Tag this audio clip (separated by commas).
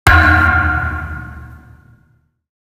Thump